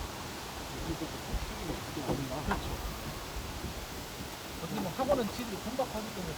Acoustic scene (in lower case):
park